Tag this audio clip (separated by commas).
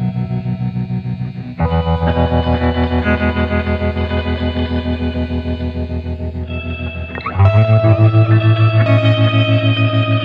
Music